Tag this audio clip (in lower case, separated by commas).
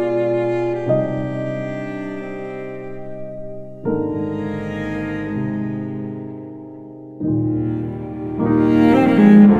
playing oboe